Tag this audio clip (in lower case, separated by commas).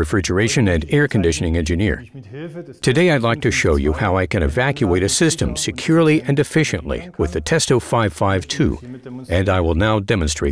speech, speech synthesizer